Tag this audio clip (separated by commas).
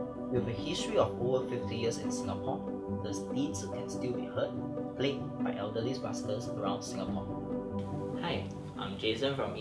Music, Musical instrument